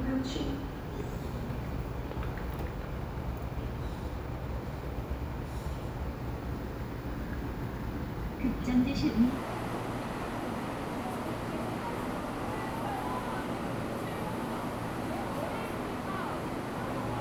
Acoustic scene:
subway station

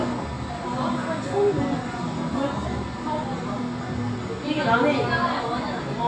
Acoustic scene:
cafe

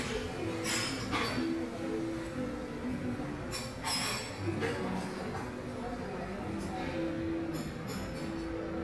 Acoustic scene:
crowded indoor space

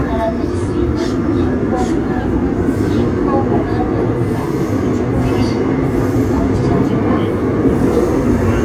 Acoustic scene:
subway train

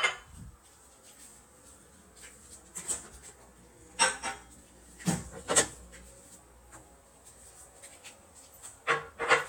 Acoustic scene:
kitchen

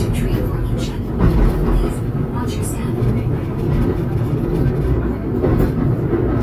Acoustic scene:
subway train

